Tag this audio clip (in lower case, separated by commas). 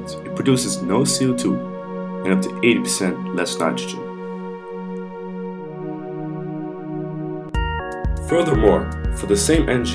music, speech